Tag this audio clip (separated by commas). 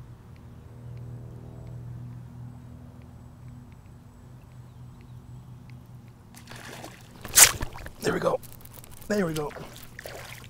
Speech